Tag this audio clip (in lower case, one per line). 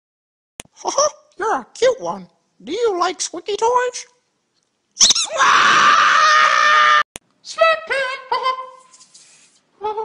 speech